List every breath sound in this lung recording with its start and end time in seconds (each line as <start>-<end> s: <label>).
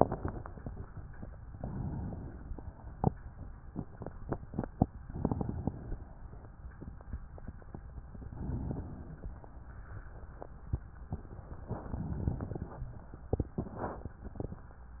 1.57-3.14 s: inhalation
4.92-6.51 s: inhalation
8.12-9.39 s: inhalation
9.38-10.64 s: exhalation
11.67-13.27 s: inhalation